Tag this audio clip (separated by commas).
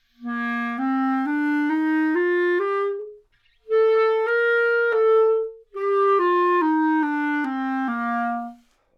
Musical instrument, Music, woodwind instrument